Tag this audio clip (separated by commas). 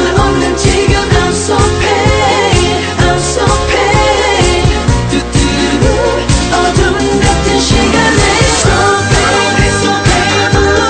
Disco